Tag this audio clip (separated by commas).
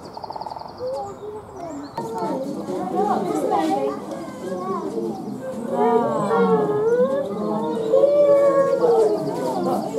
gibbon howling